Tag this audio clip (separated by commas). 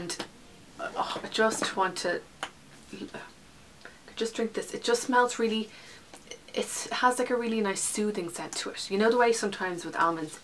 Speech, inside a small room